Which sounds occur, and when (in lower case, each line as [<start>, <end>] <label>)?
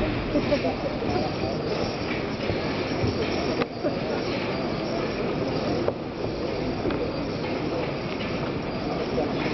[0.00, 9.53] mechanisms
[0.23, 0.88] child speech
[0.32, 0.61] generic impact sounds
[0.90, 1.78] man speaking
[1.96, 2.19] generic impact sounds
[2.38, 2.54] generic impact sounds
[2.75, 3.56] man speaking
[2.87, 3.29] generic impact sounds
[3.53, 3.67] generic impact sounds
[5.81, 5.90] generic impact sounds
[6.11, 6.33] generic impact sounds
[6.76, 6.99] generic impact sounds
[7.30, 7.49] generic impact sounds
[7.70, 7.98] generic impact sounds
[8.16, 8.36] generic impact sounds
[9.33, 9.53] generic impact sounds